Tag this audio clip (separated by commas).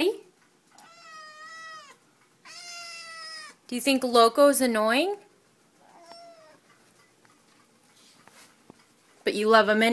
Animal, Cat, Speech, pets